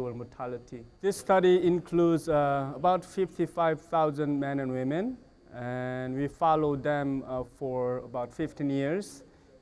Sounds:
Speech

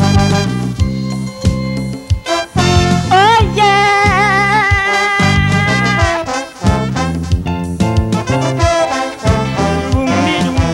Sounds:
Music, Blues

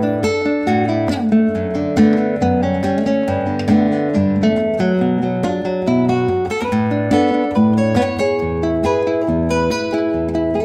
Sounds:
Musical instrument, Guitar, Acoustic guitar, Plucked string instrument, Strum, Music

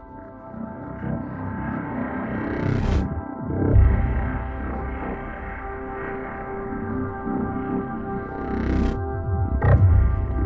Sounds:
Music

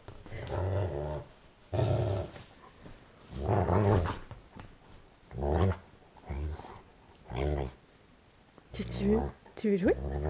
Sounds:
dog growling

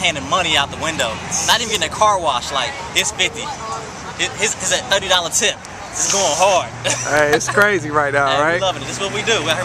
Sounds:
Vehicle, Speech, Car

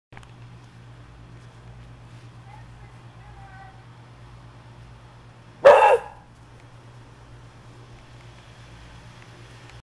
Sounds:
Speech

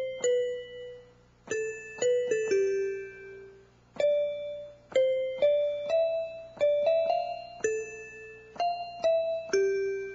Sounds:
Music

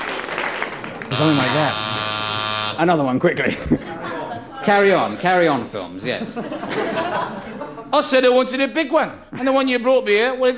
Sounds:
Speech

